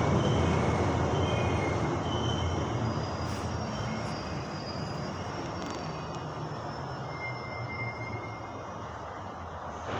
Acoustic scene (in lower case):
subway station